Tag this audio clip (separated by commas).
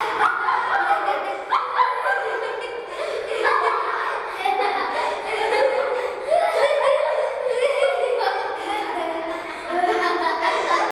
Human voice, Laughter